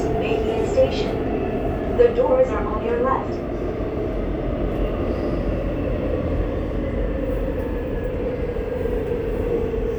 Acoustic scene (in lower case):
subway train